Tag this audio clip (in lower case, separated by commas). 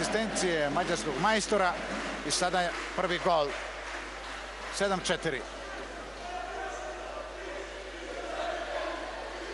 speech